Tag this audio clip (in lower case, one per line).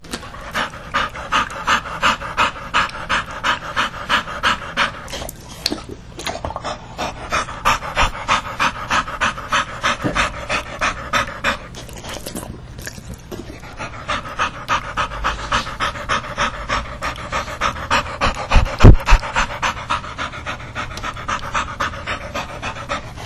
dog
animal
domestic animals
breathing
respiratory sounds